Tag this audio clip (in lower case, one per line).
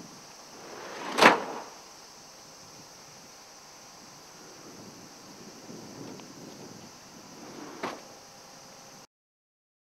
opening or closing car doors